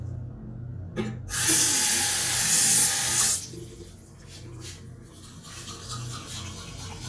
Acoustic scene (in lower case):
restroom